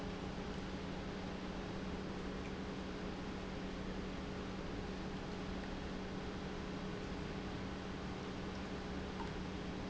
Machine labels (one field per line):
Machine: pump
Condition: normal